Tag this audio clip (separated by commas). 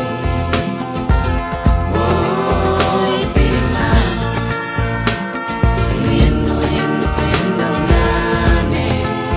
Music, Soul music